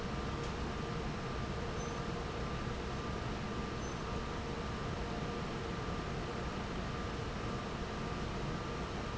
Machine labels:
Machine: fan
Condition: normal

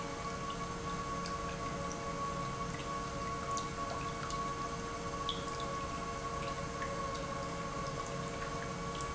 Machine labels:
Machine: pump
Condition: normal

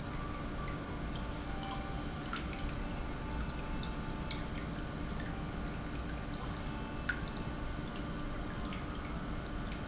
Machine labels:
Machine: pump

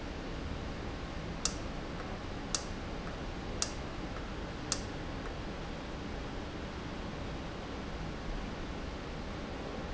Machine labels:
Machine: valve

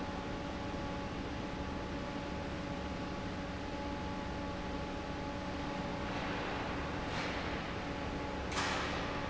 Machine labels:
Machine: fan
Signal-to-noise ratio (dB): -6 dB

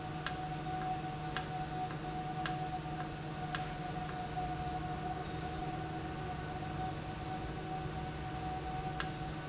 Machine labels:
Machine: valve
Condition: normal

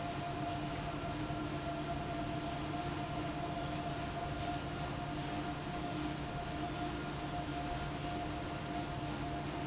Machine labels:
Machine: fan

